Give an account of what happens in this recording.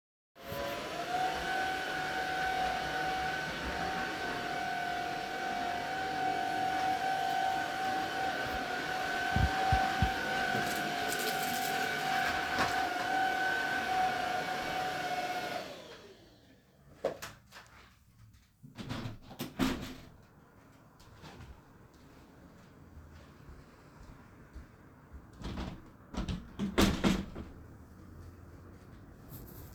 I used the vacuum cleaner. When i turned it off, i walked to the other side of the room and opened two windows.